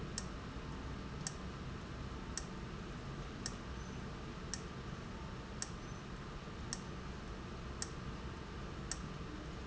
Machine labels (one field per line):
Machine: valve